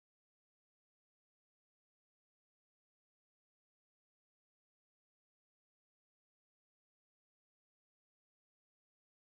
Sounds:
music, speech

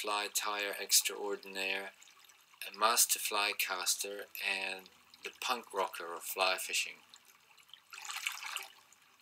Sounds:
speech

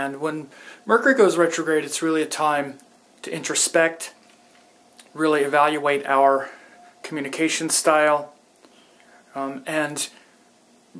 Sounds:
speech

